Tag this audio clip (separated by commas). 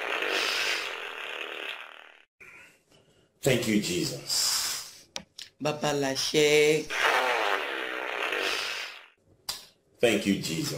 Speech